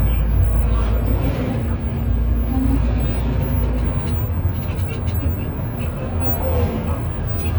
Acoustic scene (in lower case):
bus